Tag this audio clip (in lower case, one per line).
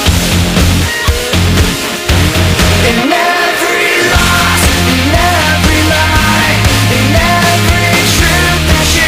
music